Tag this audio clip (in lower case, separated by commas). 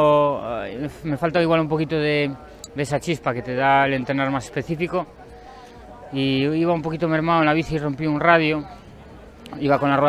speech